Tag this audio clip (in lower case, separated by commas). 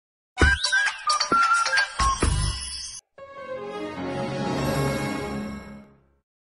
television, music